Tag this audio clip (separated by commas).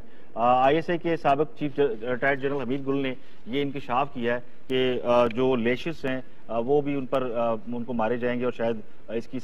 Speech